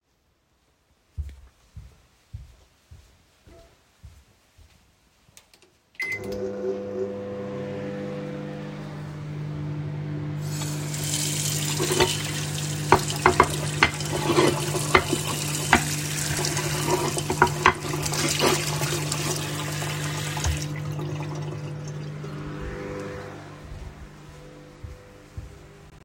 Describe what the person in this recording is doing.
I walked into the kitchen, turned on a microwave and proceeded to wash a plate in the sink with running water, before leaving the kitchen.